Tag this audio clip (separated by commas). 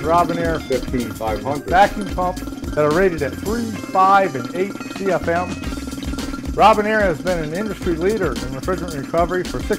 Music, Speech